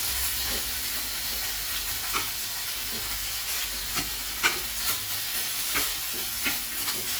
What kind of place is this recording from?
kitchen